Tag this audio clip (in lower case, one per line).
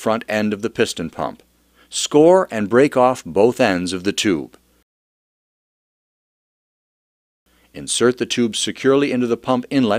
speech